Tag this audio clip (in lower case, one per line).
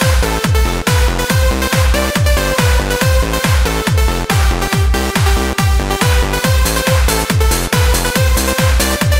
electronic music
music
trance music